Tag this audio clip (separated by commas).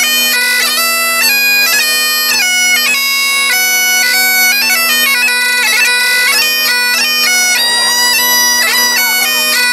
playing bagpipes